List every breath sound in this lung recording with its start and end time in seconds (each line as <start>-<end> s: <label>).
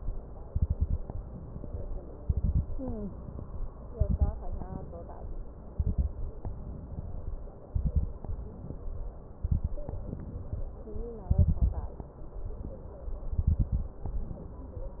0.43-1.02 s: exhalation
0.43-1.02 s: crackles
1.10-1.95 s: inhalation
2.17-2.66 s: exhalation
2.17-2.66 s: crackles
2.72-3.70 s: inhalation
3.89-4.39 s: exhalation
3.89-4.39 s: crackles
4.48-5.39 s: inhalation
5.70-6.19 s: exhalation
5.70-6.19 s: crackles
6.42-7.56 s: inhalation
7.70-8.19 s: exhalation
7.70-8.19 s: crackles
8.21-9.25 s: inhalation
9.39-9.88 s: exhalation
9.39-9.88 s: crackles
9.92-10.83 s: inhalation
11.27-11.97 s: exhalation
11.27-11.97 s: crackles
12.20-13.22 s: inhalation
13.30-14.00 s: exhalation
13.30-14.00 s: crackles
14.08-14.93 s: inhalation